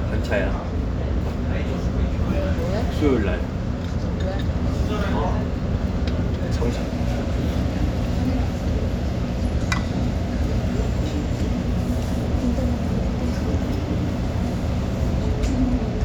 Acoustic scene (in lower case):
restaurant